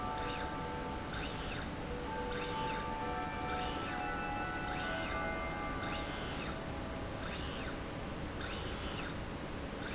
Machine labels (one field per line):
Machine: slide rail